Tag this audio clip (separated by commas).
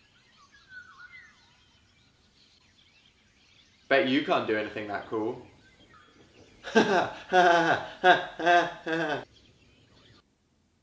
tweet, bird call, Bird